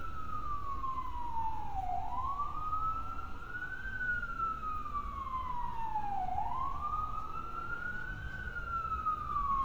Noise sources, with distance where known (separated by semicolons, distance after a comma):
siren